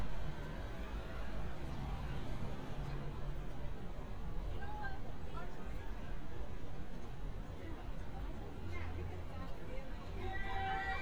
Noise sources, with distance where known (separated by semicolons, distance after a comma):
person or small group talking